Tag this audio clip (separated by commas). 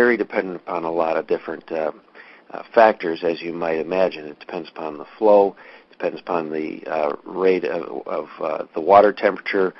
Speech